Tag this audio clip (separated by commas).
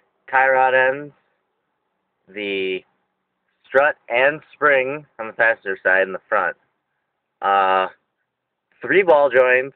Speech